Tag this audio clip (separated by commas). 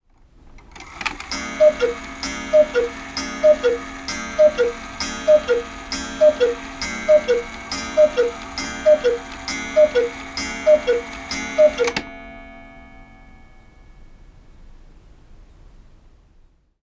Mechanisms, Clock